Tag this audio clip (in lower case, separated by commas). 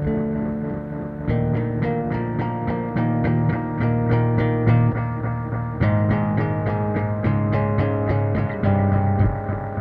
music, distortion, bass guitar